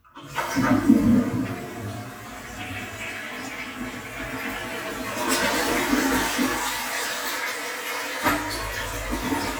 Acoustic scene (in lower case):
restroom